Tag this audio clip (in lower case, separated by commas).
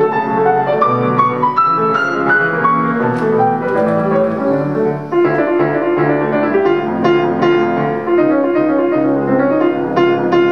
music